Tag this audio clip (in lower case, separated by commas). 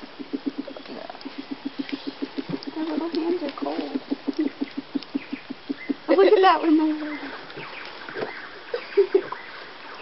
animal, bird